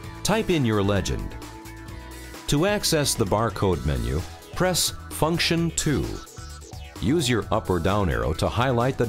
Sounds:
Music, Speech

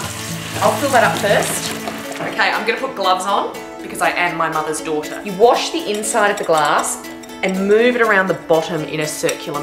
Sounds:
Chink, Music, Speech

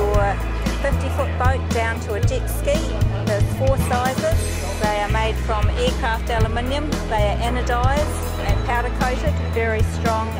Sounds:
Music, Speech

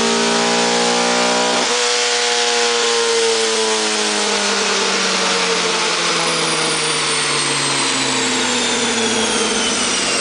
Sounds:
Vehicle, Car, inside a large room or hall

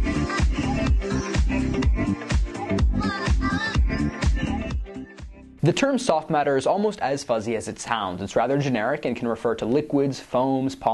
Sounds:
Speech, Music

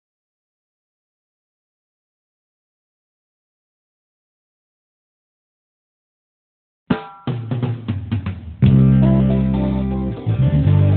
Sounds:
Drum, Music

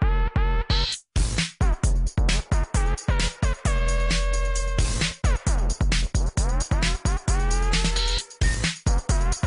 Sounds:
Music

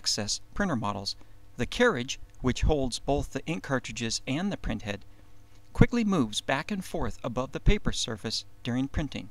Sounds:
Speech

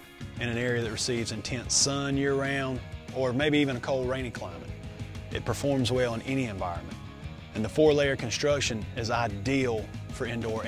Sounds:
Music, Speech

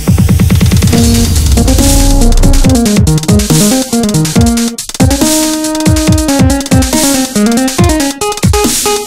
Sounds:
Electronic music, Dubstep, Music

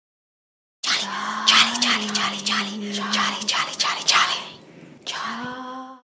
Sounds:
Speech

